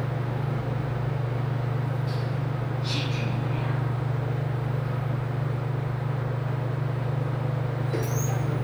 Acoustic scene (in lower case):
elevator